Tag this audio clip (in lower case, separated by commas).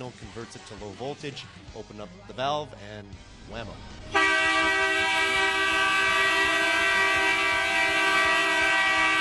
siren, train horning, train horn